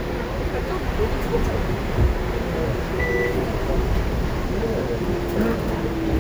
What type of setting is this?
bus